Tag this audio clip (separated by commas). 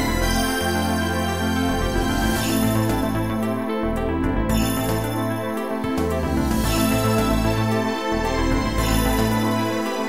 Soundtrack music, Rhythm and blues, Music